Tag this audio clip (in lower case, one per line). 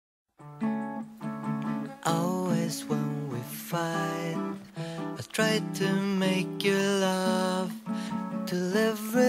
music